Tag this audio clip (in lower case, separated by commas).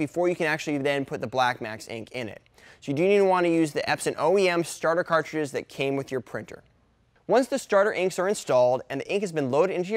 speech